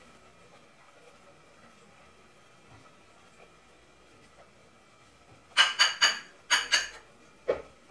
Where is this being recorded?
in a kitchen